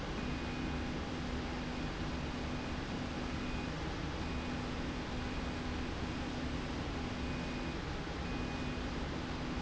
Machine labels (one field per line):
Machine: slide rail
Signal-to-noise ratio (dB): -6 dB